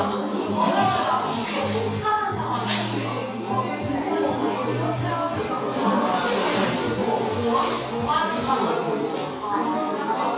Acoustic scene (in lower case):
cafe